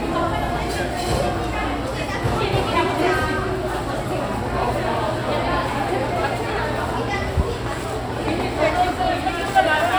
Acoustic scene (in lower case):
crowded indoor space